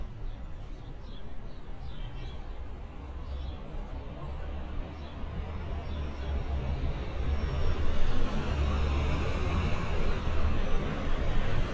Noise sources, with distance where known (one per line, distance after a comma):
large-sounding engine, near